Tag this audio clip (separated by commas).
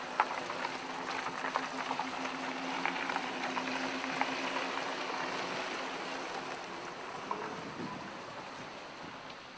Vehicle, Car